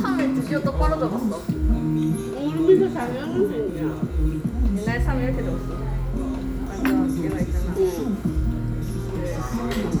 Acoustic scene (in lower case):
restaurant